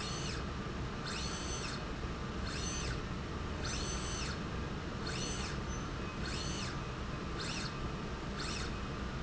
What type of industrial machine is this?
slide rail